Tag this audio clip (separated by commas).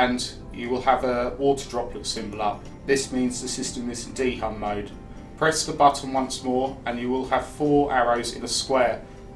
Speech, Music